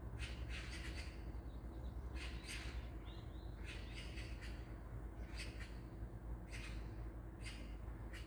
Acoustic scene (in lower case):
park